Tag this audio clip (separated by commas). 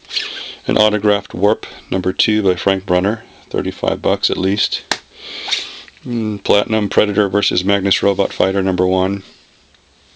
Speech